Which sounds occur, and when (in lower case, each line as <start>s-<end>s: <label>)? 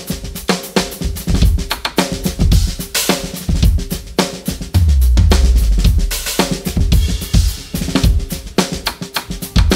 0.0s-9.7s: music